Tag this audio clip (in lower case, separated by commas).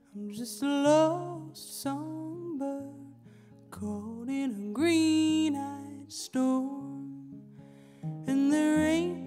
music